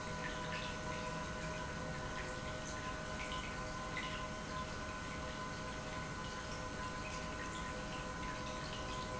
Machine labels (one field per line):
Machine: pump